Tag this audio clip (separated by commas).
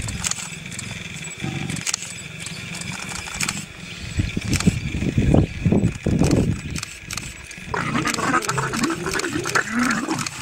cheetah chirrup